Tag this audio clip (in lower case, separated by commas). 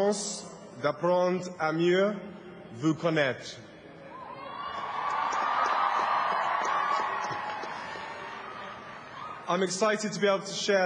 speech, narration, male speech